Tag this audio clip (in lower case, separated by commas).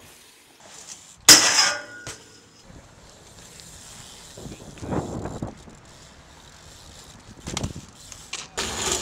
vehicle, outside, urban or man-made, speech, bicycle